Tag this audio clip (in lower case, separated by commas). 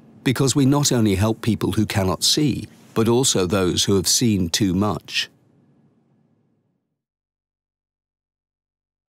speech